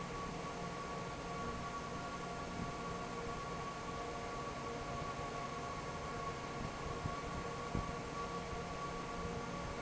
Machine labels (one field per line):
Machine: fan